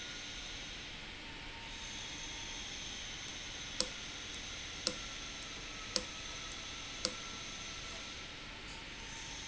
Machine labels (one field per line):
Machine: valve